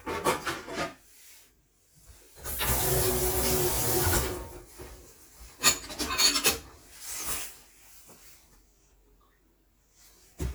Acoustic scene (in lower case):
kitchen